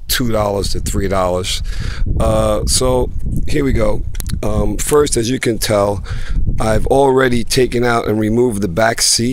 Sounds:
speech

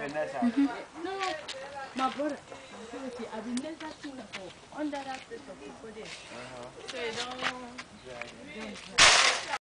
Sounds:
speech

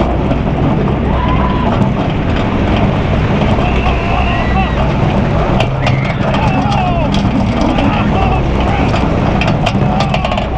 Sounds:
roller coaster running

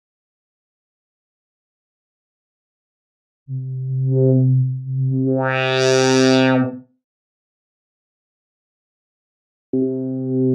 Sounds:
music, inside a small room, silence

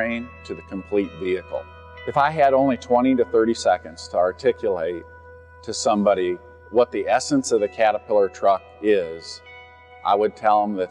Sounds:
music, speech

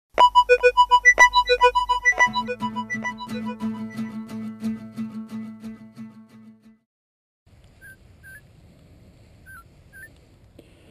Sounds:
music

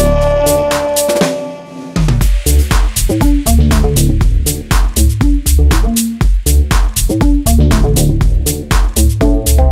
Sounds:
rimshot, drum roll, drum, music

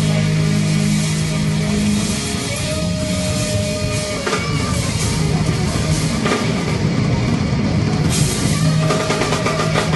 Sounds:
music, guitar

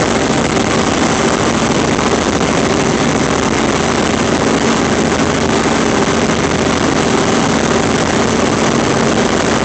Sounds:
aircraft, vehicle

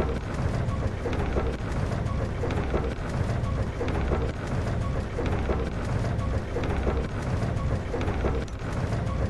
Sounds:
music

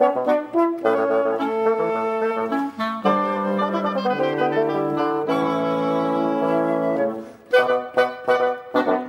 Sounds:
clarinet, brass instrument, french horn

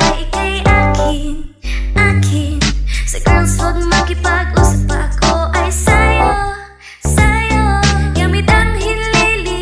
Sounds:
music

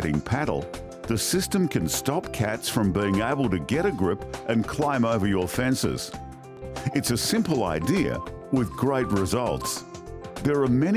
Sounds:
music, speech

